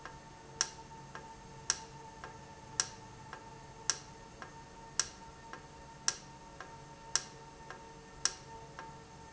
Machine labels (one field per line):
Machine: valve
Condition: normal